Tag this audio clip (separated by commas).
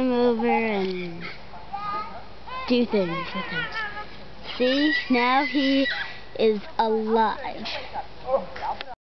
Speech